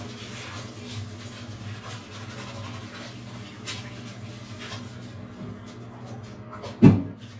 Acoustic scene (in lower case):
restroom